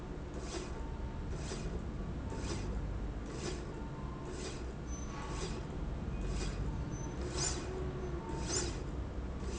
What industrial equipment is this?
slide rail